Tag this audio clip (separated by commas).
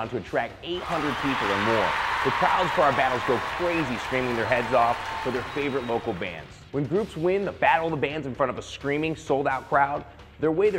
Speech